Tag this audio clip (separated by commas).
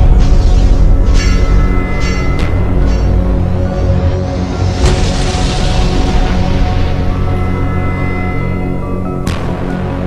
Music, Scary music